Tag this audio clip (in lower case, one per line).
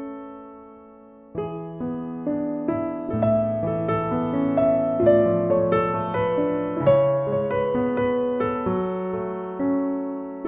wedding music
music